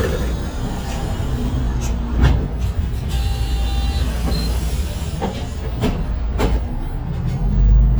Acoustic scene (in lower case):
bus